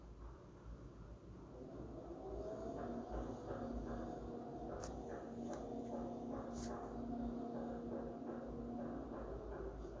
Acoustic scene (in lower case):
elevator